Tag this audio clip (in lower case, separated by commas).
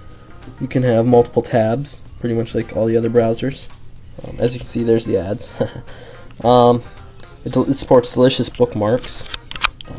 inside a small room, music, speech